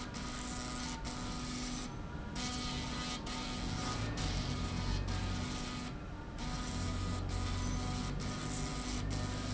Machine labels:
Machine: slide rail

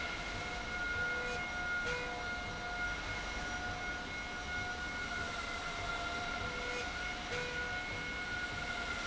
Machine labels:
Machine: slide rail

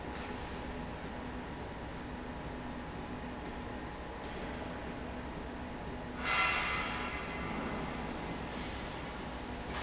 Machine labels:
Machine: slide rail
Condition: normal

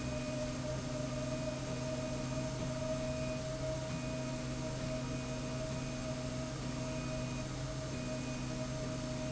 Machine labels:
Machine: slide rail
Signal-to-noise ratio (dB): -6 dB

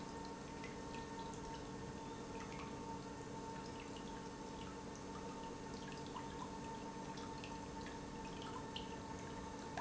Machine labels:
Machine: pump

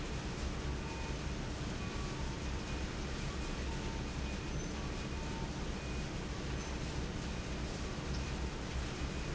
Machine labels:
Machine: fan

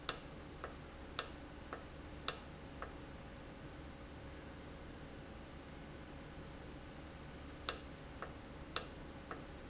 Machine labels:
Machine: valve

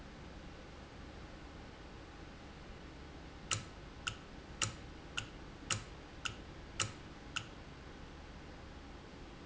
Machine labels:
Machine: valve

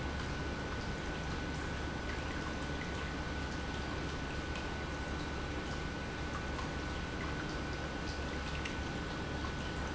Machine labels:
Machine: pump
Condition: normal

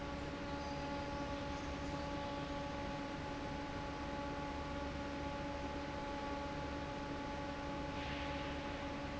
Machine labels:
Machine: fan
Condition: normal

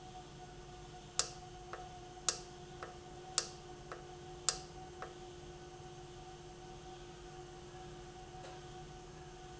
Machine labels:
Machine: valve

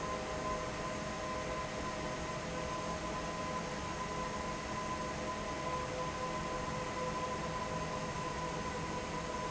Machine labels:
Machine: fan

